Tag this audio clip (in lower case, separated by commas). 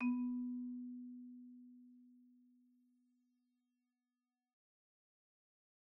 percussion, mallet percussion, music, musical instrument, xylophone